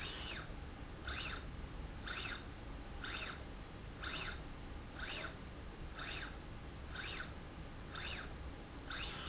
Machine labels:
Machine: slide rail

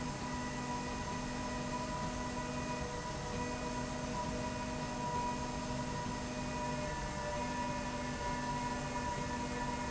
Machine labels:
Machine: slide rail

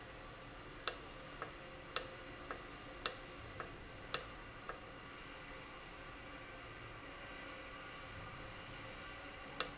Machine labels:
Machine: valve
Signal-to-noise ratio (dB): 6 dB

